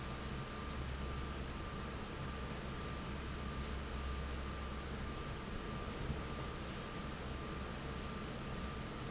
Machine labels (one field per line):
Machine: fan